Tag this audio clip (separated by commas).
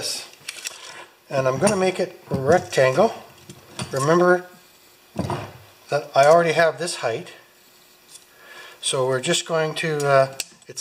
Speech